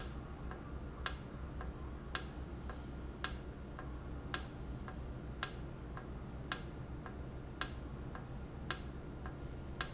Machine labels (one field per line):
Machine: valve